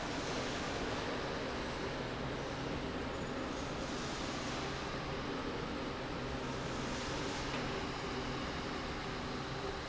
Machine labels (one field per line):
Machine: slide rail